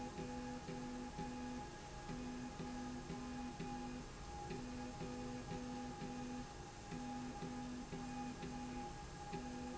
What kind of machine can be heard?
slide rail